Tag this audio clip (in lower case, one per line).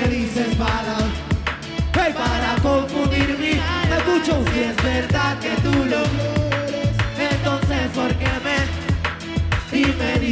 music
exciting music